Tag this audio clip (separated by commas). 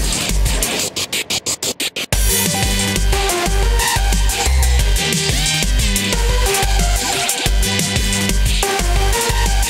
Dubstep, Music